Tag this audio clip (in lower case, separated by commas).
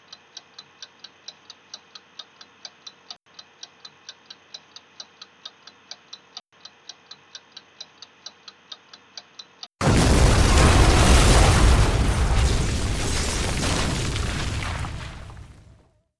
mechanisms, clock